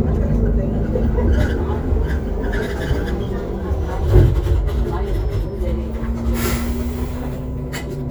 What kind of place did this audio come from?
bus